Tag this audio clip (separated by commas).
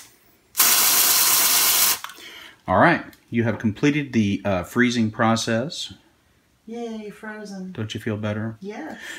Speech, inside a small room